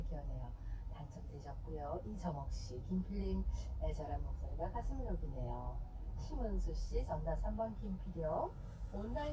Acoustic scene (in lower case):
car